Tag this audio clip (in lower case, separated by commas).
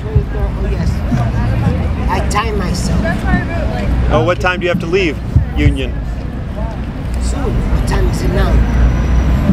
speech